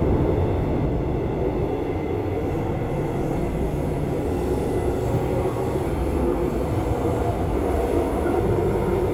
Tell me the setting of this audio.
subway train